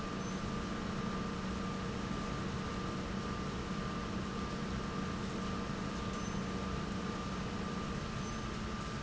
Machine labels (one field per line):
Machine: pump